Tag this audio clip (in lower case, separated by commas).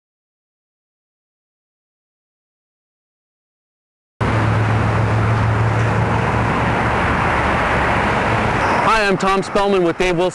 speech, silence, field recording, outside, urban or man-made